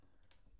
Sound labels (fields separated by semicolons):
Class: cupboard; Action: opening; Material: wooden